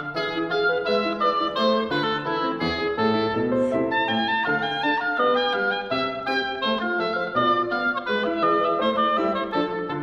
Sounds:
playing oboe

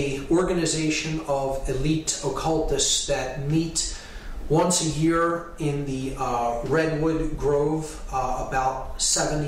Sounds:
speech

